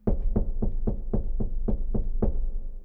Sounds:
home sounds, Knock, Wood, Door

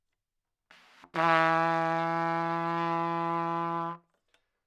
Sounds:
Music, Brass instrument, Musical instrument, Trumpet

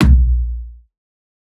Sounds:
Music, Percussion, Drum, Musical instrument, Bass drum

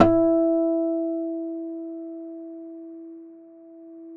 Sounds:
Musical instrument, Acoustic guitar, Music, Guitar, Plucked string instrument

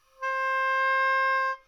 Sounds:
Wind instrument, Musical instrument, Music

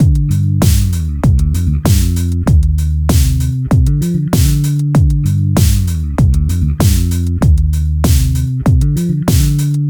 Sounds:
Plucked string instrument, Music, Guitar, Musical instrument, Bass guitar

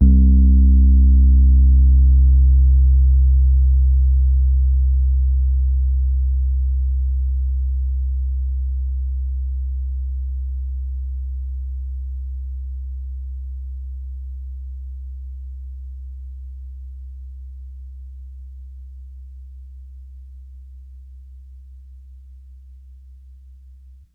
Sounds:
Keyboard (musical), Piano, Musical instrument, Music

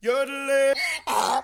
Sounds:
Human voice, Singing

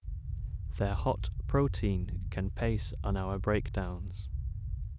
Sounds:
Speech, Human voice

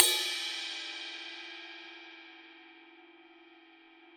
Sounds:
Music, Cymbal, Musical instrument, Percussion

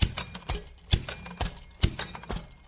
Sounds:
Mechanisms

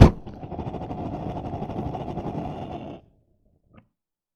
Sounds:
Fire

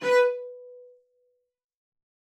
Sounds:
Bowed string instrument, Musical instrument, Music

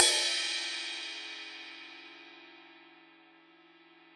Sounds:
Musical instrument, Crash cymbal, Cymbal, Music, Percussion

